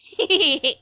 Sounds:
Human voice, Laughter, Giggle

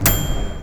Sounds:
Bell, home sounds, Microwave oven

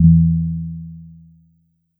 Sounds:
Piano, Musical instrument, Keyboard (musical), Music

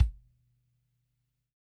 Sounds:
Musical instrument, Bass drum, Music, Percussion, Drum

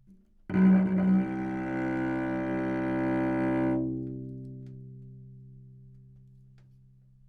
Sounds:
Music, Bowed string instrument, Musical instrument

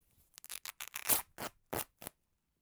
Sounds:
Tearing

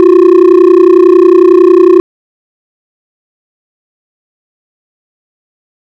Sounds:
Telephone, Alarm

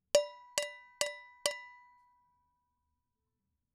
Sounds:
Domestic sounds, dishes, pots and pans

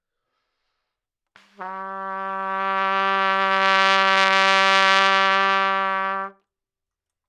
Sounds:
Trumpet, Musical instrument, Music, Brass instrument

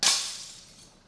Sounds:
Glass, Shatter

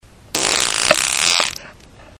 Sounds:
Fart

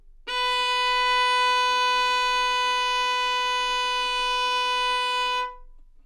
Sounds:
Bowed string instrument, Musical instrument, Music

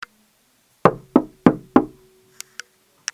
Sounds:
Wood, Knock, Domestic sounds, Door

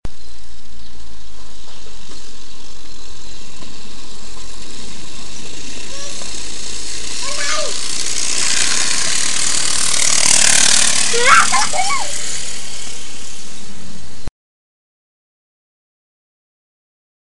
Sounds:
Vehicle, Bicycle

